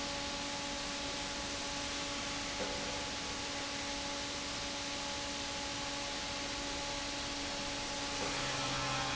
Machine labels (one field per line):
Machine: fan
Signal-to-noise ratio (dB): -6 dB